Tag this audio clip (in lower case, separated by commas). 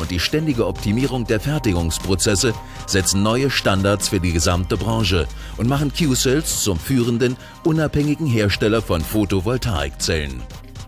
music, speech